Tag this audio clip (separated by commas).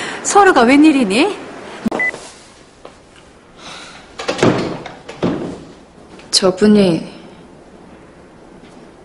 Speech